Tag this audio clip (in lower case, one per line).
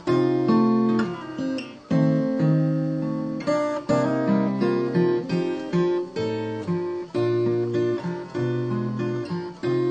music
plucked string instrument
acoustic guitar
strum
musical instrument
guitar